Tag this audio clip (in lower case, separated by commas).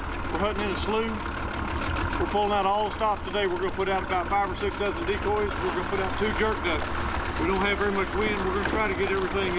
speech